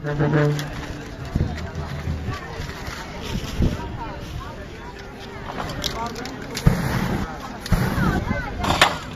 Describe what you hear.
Traffic in the distance, wind blows and people speak, there is crinkling paper followed by a few short bursts